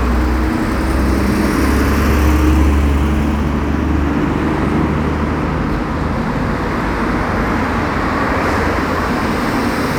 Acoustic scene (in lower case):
street